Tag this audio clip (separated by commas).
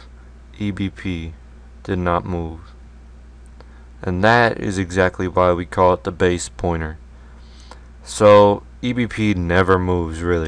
Speech